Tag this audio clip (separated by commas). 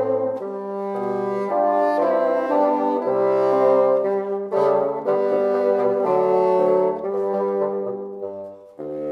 playing bassoon